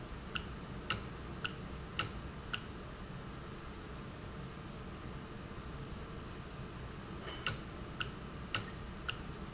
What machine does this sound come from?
valve